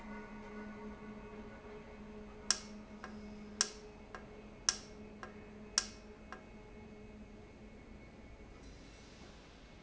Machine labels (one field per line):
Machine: valve